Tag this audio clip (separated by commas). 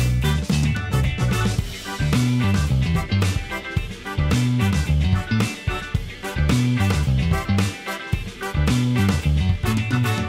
Music, Ambient music